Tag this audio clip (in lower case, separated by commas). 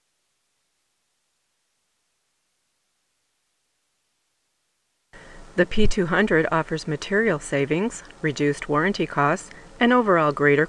speech